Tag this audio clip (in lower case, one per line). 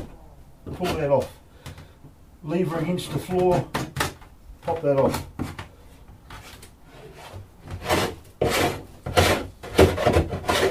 tools